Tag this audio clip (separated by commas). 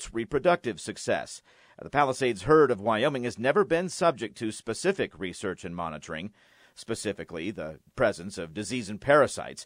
Speech